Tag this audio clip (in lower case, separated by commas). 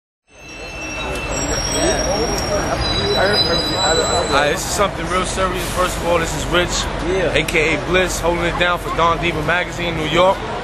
speech